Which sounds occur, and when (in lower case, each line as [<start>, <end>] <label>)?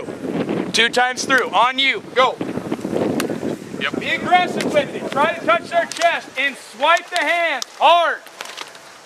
[0.00, 0.95] wind noise (microphone)
[0.00, 9.05] conversation
[0.00, 9.05] wind
[0.66, 1.96] male speech
[1.04, 1.63] wind noise (microphone)
[1.31, 1.40] tap
[1.91, 5.89] wind noise (microphone)
[2.10, 2.31] male speech
[3.12, 3.23] tap
[3.77, 6.18] male speech
[4.56, 4.62] tap
[5.07, 5.15] tap
[5.87, 6.04] tap
[6.31, 6.52] male speech
[6.74, 7.60] male speech
[6.90, 6.99] tap
[7.11, 7.22] tap
[7.56, 7.67] tap
[7.72, 8.16] male speech
[8.35, 8.65] tap